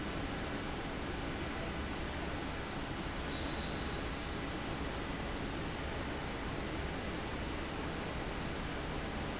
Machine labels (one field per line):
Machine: fan